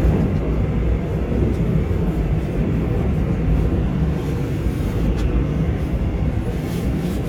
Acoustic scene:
subway train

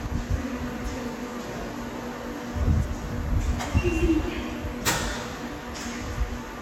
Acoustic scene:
subway station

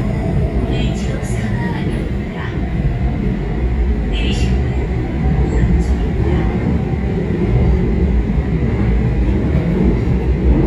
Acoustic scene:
subway train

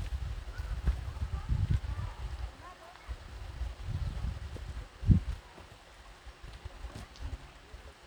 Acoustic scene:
park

